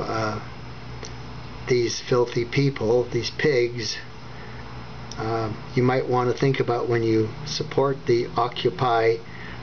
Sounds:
speech

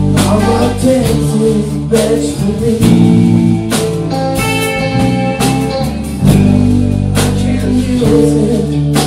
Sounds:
music

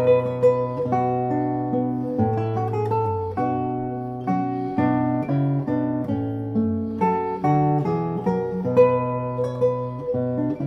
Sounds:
guitar
musical instrument
music

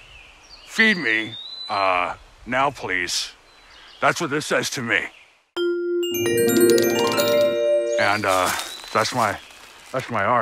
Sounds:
glockenspiel
speech
music

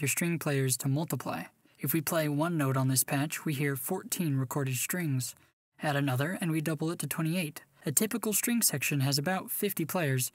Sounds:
speech

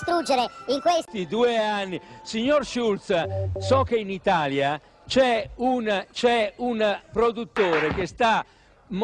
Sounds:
speech

